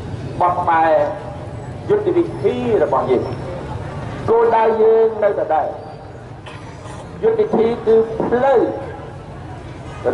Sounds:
narration
speech
man speaking

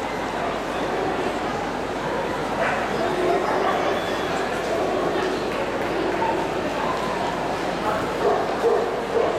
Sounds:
speech
animal
dog
bow-wow
domestic animals

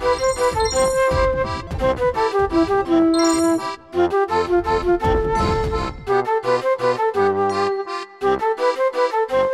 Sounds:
music

